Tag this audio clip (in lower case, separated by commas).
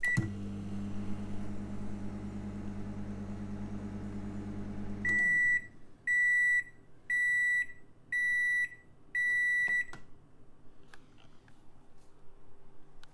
microwave oven, domestic sounds